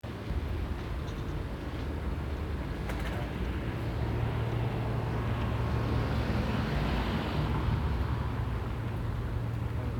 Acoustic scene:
residential area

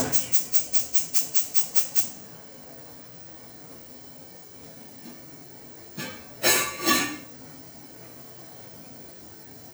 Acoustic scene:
kitchen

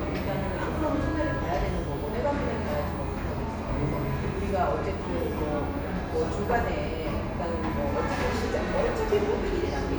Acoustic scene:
cafe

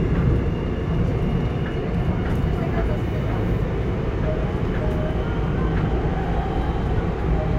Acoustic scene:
subway train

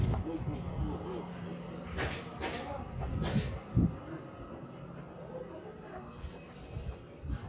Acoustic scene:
residential area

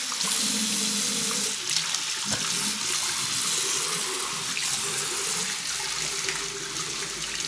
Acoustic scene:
restroom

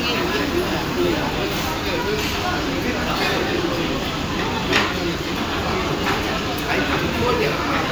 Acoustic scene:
crowded indoor space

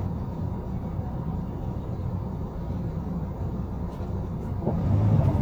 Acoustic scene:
bus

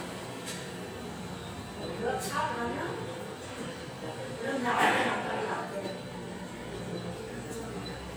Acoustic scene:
restaurant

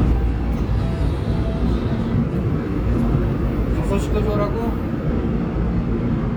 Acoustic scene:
subway train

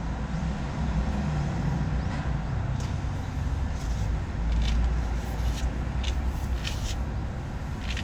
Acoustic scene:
residential area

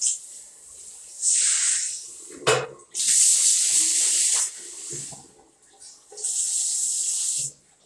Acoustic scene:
restroom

